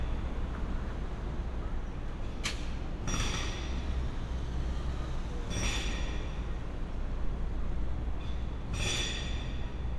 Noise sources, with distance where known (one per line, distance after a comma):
unidentified impact machinery, near